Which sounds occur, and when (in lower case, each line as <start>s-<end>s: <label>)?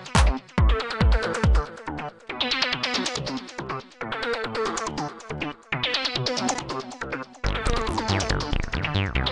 0.0s-9.3s: music